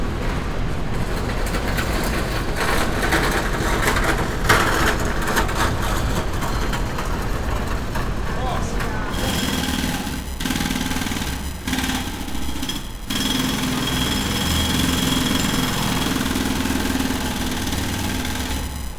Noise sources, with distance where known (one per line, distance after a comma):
unidentified impact machinery, near